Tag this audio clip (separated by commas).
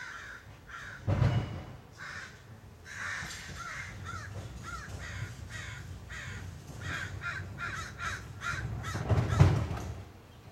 crow cawing